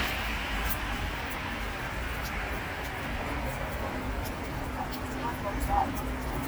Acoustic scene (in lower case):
street